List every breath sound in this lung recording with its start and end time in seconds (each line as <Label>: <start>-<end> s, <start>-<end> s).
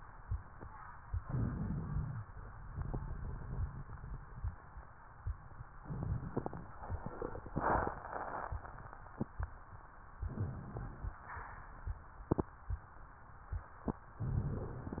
Inhalation: 1.19-2.22 s, 5.78-6.80 s, 10.21-11.21 s
Exhalation: 2.66-4.96 s
Crackles: 5.78-6.80 s